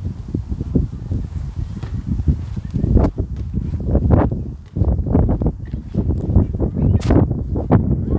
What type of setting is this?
park